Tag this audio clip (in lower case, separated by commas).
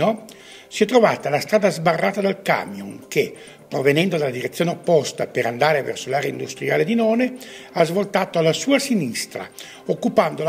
speech